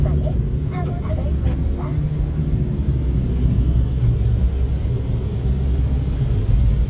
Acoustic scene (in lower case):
car